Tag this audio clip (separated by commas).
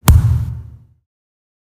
thud